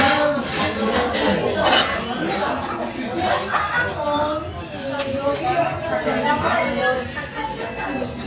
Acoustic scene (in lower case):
restaurant